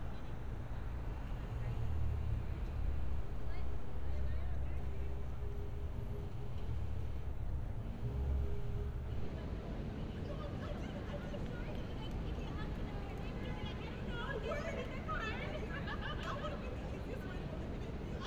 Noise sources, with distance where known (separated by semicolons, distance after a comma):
unidentified human voice